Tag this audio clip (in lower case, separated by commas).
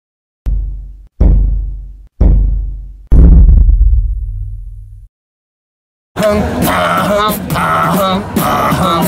beatboxing, vocal music, speech